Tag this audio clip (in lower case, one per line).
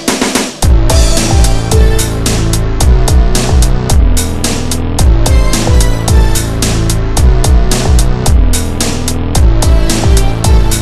music